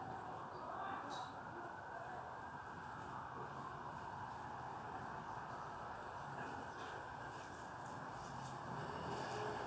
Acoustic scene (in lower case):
residential area